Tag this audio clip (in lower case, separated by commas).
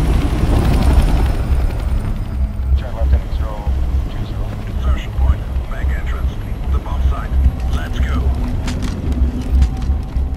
speech